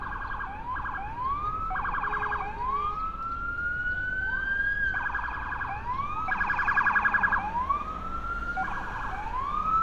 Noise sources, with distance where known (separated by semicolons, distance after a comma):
siren, near